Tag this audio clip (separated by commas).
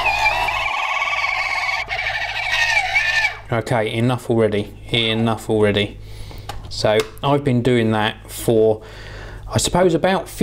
Speech